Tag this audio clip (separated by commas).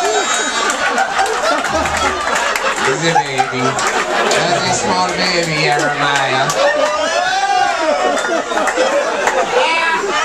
Speech